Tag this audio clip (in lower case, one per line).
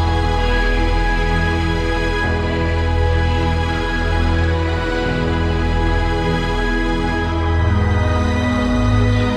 music
theme music